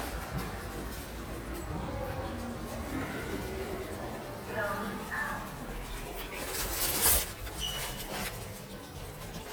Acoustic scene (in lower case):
elevator